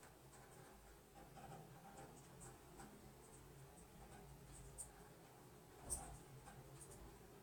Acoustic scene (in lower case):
elevator